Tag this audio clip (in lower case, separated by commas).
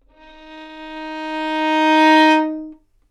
musical instrument, music, bowed string instrument